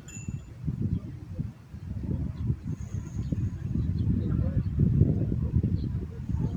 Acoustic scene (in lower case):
park